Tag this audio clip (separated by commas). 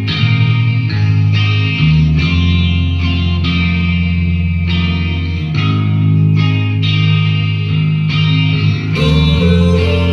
Music